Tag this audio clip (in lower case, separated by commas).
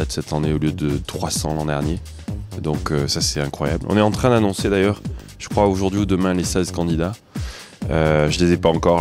music, speech